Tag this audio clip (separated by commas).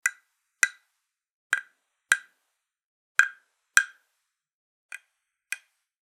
Tap